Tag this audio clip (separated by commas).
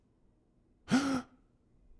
Gasp, Breathing, Respiratory sounds